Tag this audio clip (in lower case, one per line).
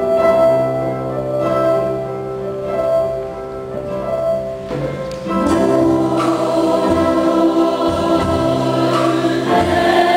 singing
music
choir
gospel music